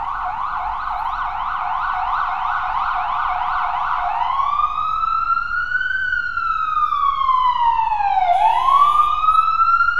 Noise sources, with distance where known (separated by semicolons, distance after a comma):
car horn; siren, near